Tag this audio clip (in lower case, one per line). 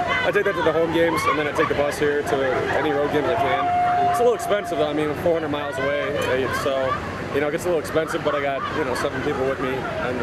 speech